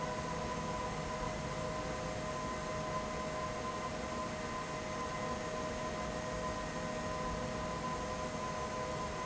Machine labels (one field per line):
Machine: fan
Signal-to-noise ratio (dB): -6 dB